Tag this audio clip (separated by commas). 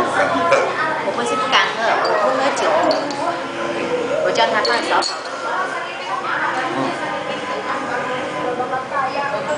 inside a large room or hall, Speech